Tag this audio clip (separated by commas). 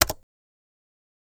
Domestic sounds, Typing, Computer keyboard